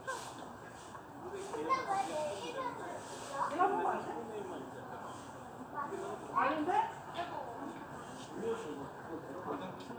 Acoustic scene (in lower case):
residential area